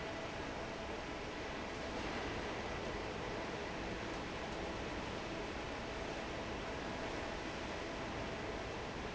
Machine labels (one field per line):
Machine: fan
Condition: normal